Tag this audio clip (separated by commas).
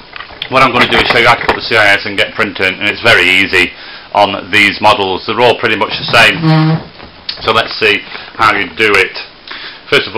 Speech